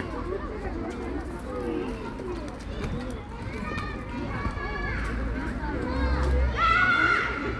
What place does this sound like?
park